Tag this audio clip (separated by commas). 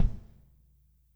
Bass drum, Musical instrument, Drum, Percussion, Music